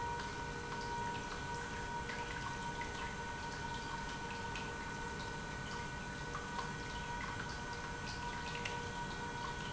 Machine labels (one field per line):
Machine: pump